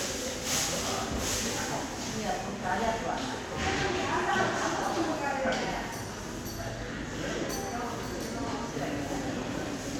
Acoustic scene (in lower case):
subway station